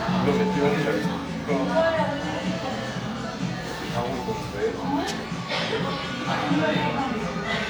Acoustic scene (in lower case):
cafe